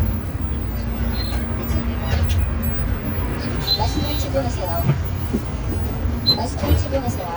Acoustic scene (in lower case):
bus